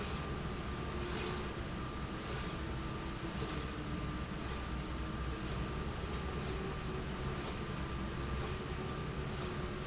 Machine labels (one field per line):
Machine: slide rail